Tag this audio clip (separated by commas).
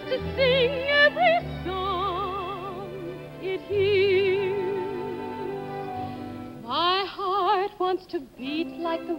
Music, Tender music